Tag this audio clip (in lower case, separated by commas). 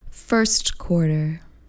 human voice, woman speaking, speech